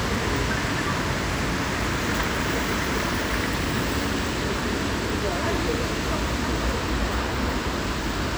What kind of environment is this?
street